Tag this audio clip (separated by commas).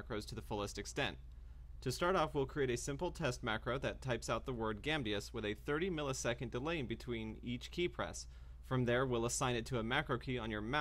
mouse clicking